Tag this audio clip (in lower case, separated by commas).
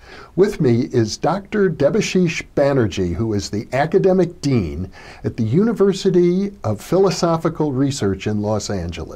speech